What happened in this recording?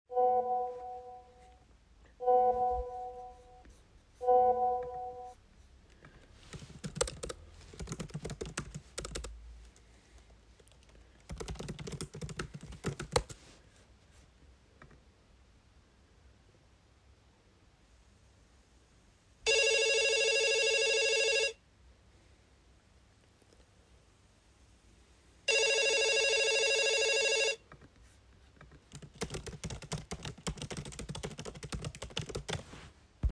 I prepared the hands on ai submission, then I was called by a friend on the phone.